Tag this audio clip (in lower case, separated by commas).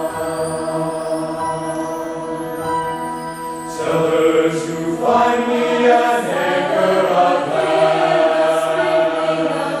music